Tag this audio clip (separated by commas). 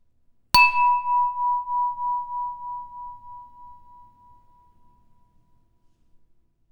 Domestic sounds, Chink, dishes, pots and pans, Glass